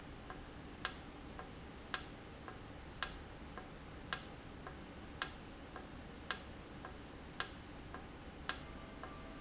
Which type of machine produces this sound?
valve